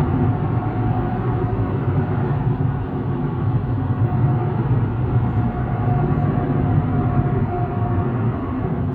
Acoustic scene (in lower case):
car